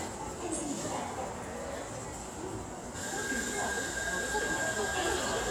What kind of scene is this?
subway station